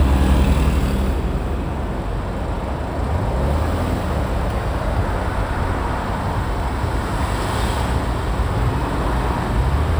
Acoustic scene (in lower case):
street